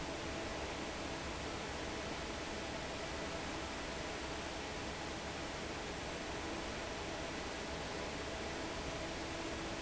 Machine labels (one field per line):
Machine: fan